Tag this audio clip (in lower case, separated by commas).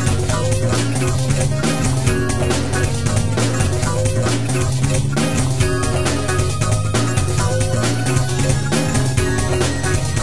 funny music, music